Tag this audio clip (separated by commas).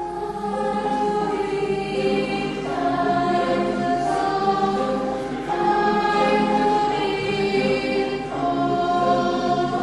Choir, Vocal music, Singing, Gospel music, Christian music, Music